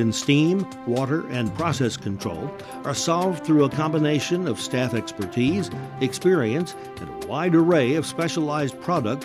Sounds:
Music, Speech

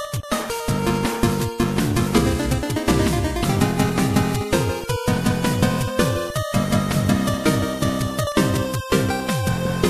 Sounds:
Music, Video game music

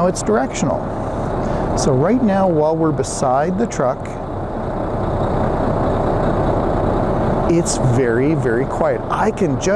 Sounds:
reversing beeps

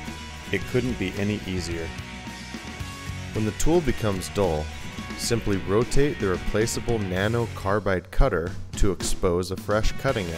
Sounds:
Music, Speech

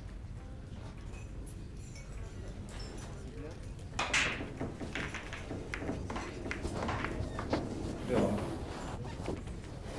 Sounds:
striking pool

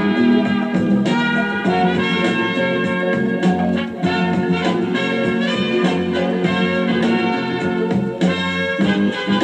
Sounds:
Music

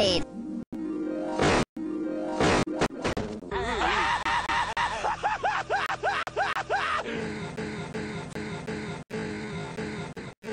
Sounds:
Music, Speech

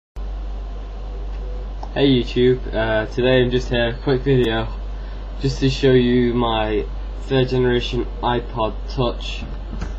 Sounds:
Speech

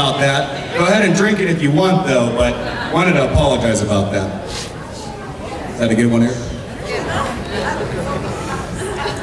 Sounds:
man speaking, woman speaking, Speech

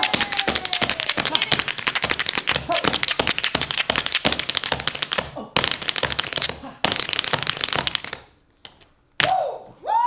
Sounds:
tap dancing

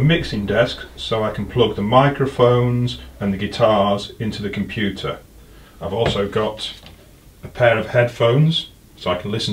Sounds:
Speech

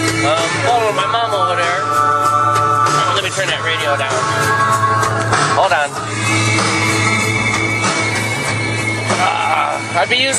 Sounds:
Music, Speech

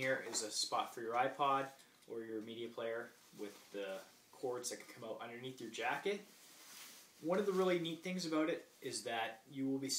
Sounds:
Speech

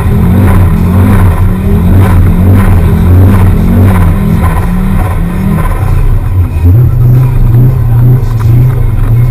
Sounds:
Vehicle, Car, vroom

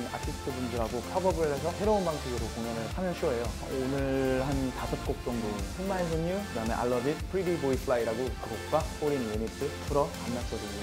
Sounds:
Music, Speech

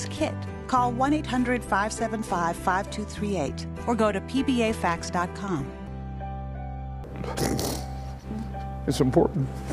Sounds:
Speech, Music

